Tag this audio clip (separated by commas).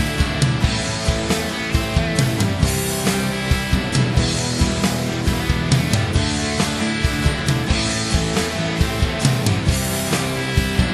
Music